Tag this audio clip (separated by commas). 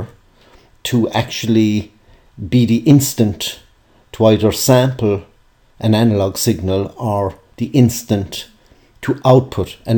Speech